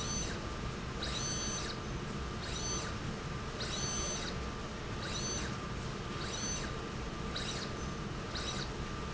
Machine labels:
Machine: slide rail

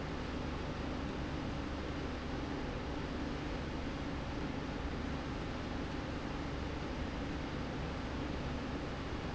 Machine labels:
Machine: slide rail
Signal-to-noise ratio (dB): -6 dB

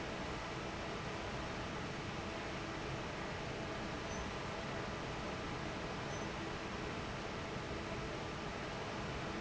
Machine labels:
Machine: fan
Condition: normal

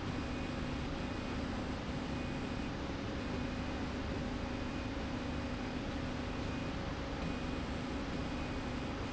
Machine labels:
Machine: slide rail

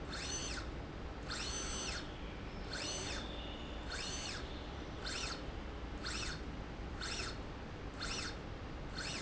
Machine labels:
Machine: slide rail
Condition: normal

